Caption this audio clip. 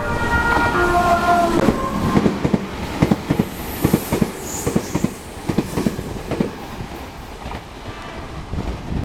A train is passing by